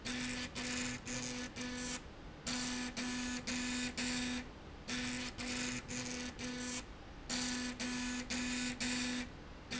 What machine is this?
slide rail